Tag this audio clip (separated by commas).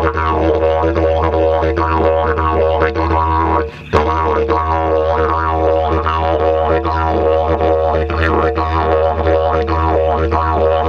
playing didgeridoo